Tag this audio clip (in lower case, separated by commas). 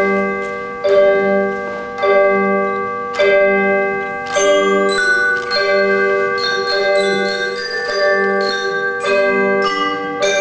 music, tubular bells